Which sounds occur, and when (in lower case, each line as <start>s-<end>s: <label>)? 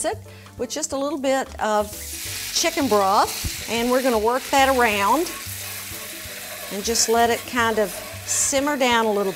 0.0s-9.3s: music
0.2s-0.5s: breathing
0.4s-0.5s: tick
1.4s-1.6s: tap
1.6s-1.9s: human voice
1.9s-9.3s: sizzle
1.9s-2.5s: pour
3.4s-3.6s: generic impact sounds
5.2s-9.3s: stir
8.3s-9.3s: female speech